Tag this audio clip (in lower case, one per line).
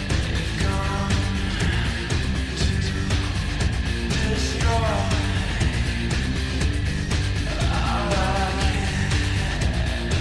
music